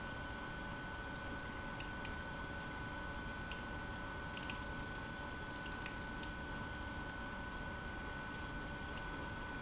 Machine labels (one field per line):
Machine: pump